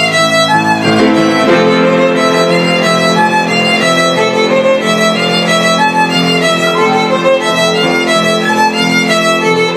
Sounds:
Musical instrument, Violin, Music

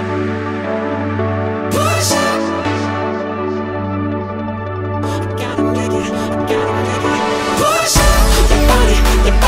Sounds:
Electronic music, Pop music, Music, Electronica

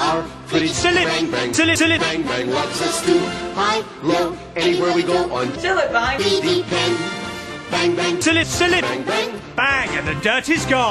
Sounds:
Speech, Music

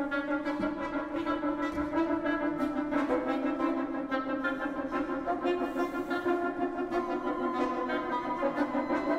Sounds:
Music

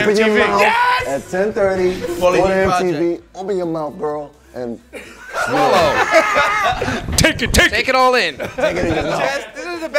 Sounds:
Laughter, Speech, Music

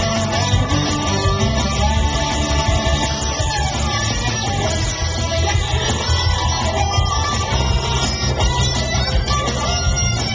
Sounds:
Musical instrument, fiddle, Music

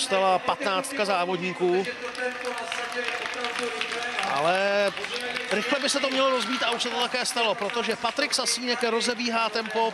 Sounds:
Speech

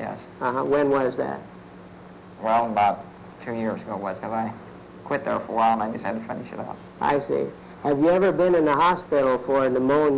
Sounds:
Speech

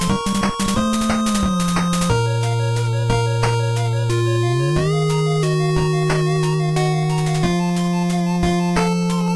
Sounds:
Soundtrack music, Music

